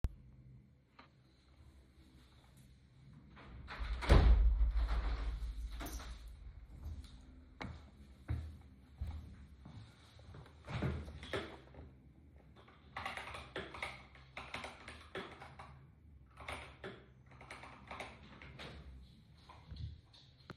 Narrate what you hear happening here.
After the room was getting cold, I closed the window, adjusted my watch which was dislocated while closing the window, sat down and begann my typing on my keyboard